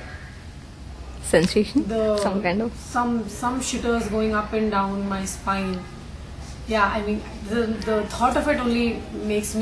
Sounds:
Female speech

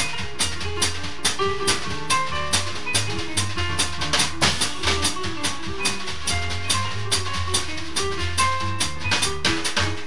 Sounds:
inside a small room, Musical instrument, Drum, Drum kit, Music

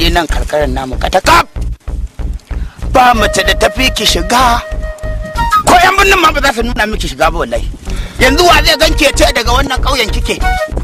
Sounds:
Music, Speech, outside, rural or natural

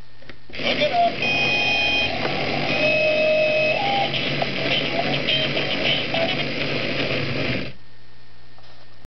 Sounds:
Vehicle

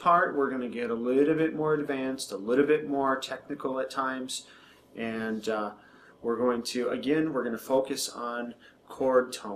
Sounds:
Speech

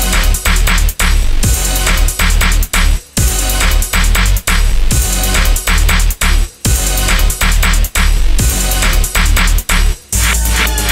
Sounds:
Music

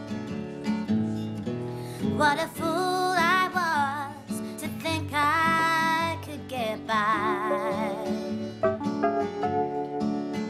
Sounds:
Singing, Music

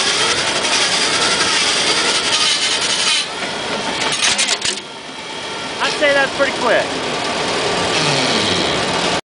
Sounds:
Sawing

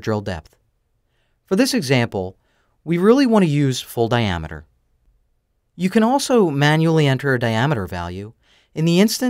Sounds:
Speech

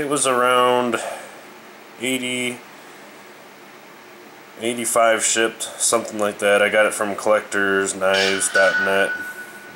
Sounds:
Speech

